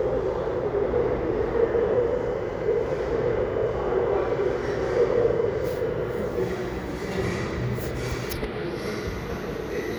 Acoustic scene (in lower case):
restaurant